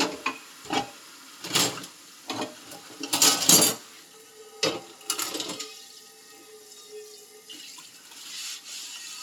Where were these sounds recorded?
in a kitchen